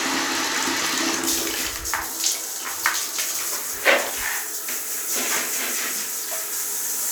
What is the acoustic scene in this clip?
restroom